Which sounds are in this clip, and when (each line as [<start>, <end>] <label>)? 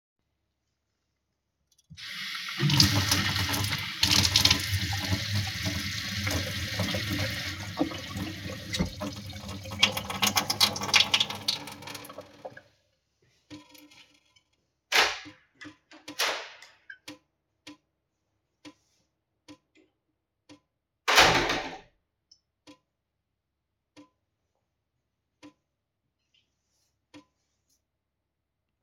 [1.89, 12.91] running water
[14.70, 17.35] door
[20.95, 22.08] door